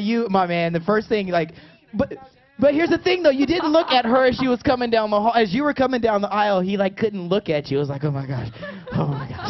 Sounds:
speech

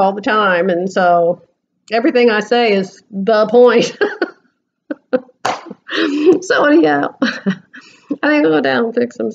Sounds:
speech, inside a large room or hall

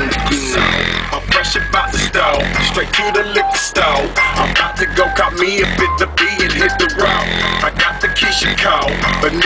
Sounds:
music

